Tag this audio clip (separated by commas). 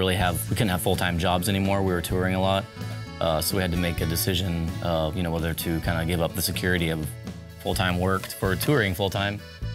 Music, Speech